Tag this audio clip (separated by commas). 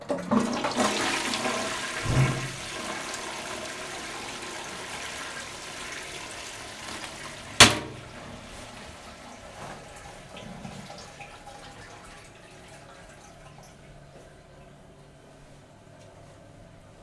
home sounds, Toilet flush